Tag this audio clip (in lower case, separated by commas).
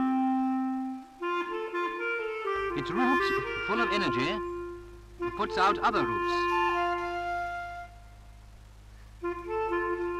music, speech, woodwind instrument, clarinet